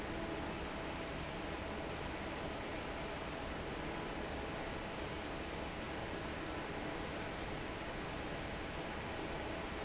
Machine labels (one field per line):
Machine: fan